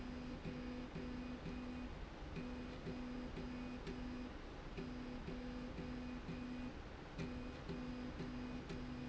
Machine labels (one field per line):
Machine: slide rail